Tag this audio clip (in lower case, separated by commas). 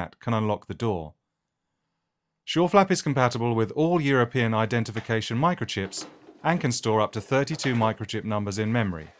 flap, speech